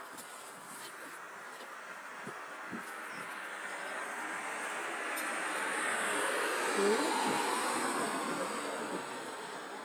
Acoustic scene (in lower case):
street